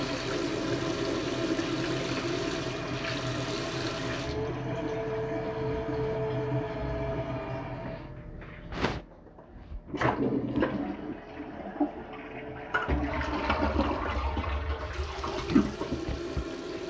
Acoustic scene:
restroom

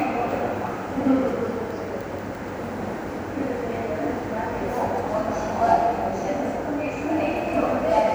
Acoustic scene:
subway station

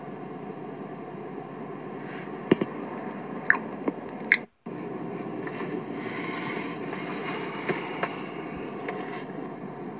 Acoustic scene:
car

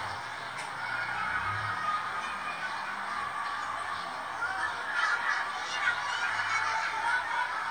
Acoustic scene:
residential area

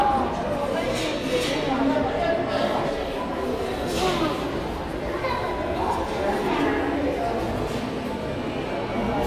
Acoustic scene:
crowded indoor space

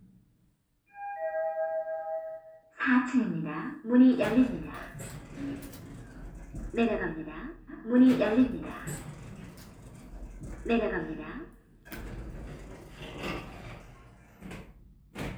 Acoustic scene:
elevator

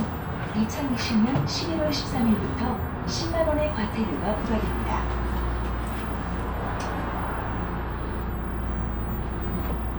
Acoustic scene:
bus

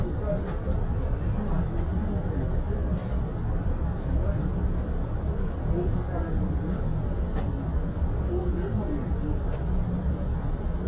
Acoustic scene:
bus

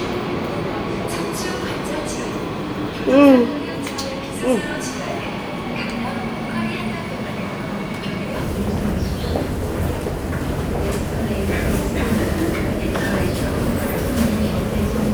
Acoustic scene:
subway station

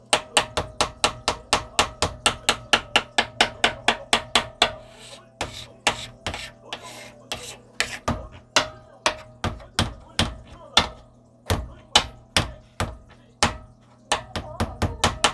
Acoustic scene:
kitchen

